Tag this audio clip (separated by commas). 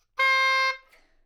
Wind instrument, Music, Musical instrument